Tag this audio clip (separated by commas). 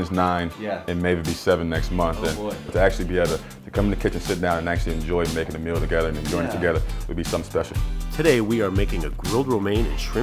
Music, Speech